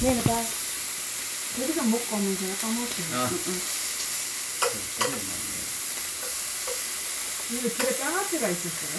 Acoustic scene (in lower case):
restaurant